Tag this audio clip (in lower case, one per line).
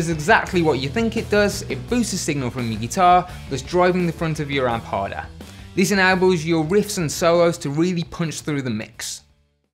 speech
music